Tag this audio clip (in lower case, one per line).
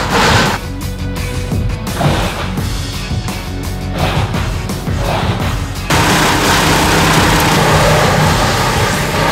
vehicle
music
outside, rural or natural